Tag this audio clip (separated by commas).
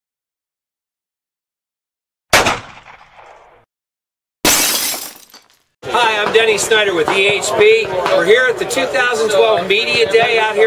Speech, Silence